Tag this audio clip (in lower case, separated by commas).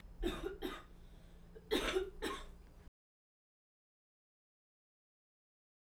respiratory sounds, cough